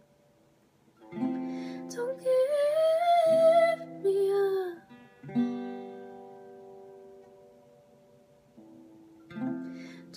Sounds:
music, singing, guitar

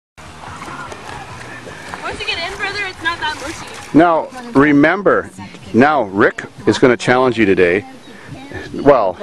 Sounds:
speech, music

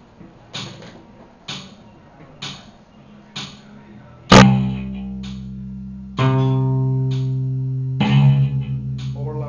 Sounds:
tapping (guitar technique), speech, music, bass guitar

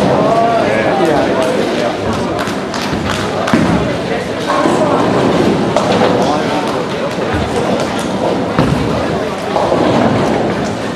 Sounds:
thump

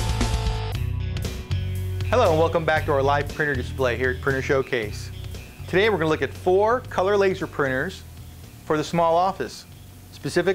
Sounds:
music, speech

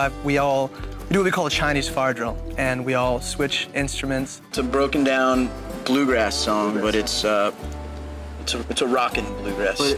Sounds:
speech, music

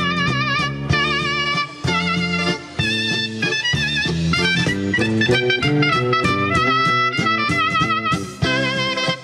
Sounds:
percussion, music, clarinet, blues, orchestra

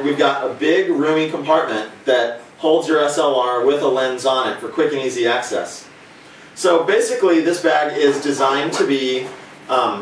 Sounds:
speech

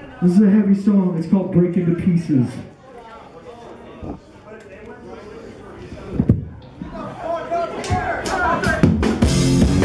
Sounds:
speech, music

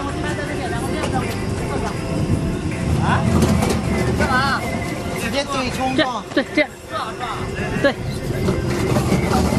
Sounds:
speech, music

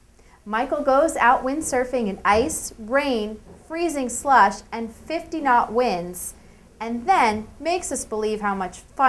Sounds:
speech

